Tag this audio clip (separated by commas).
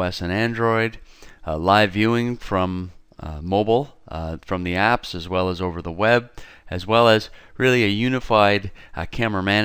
Speech